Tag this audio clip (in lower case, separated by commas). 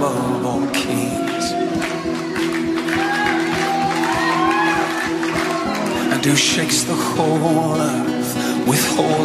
music